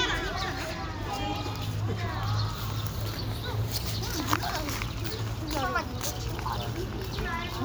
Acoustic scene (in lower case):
park